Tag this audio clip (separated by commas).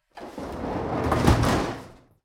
Door, Domestic sounds, Sliding door, Wood, Slam